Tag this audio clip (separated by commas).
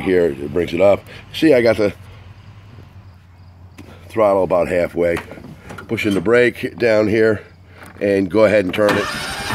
Speech, Vehicle